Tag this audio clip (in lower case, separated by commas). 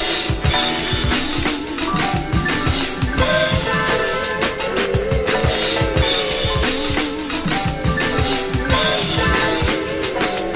music, electronica